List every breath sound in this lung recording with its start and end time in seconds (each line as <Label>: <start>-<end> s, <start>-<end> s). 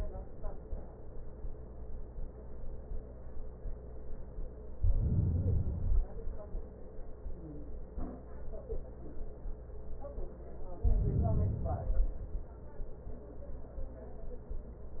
Inhalation: 4.72-6.22 s, 10.76-12.53 s